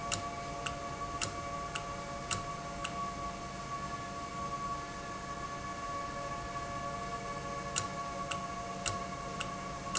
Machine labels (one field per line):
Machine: valve